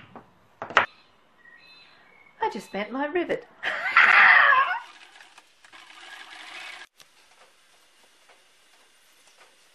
A metal object falls, followed by a woman who talks and then screams, after which a sewing machine actuates several times